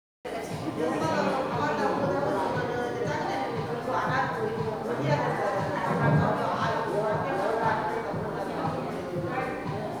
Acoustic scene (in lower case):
crowded indoor space